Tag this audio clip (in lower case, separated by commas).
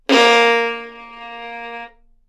musical instrument, music, bowed string instrument